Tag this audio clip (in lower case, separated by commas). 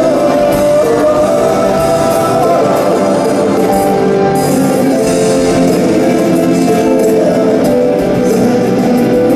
music